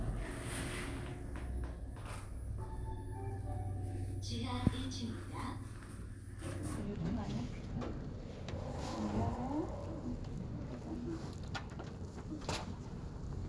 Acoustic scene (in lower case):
elevator